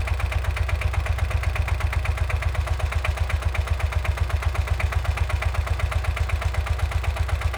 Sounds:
Idling, Engine

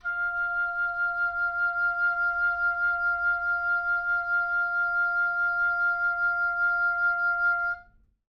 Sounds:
Music, Musical instrument, Wind instrument

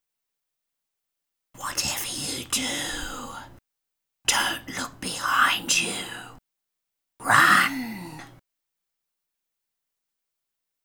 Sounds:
Whispering, Human voice

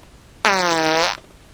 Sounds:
Fart

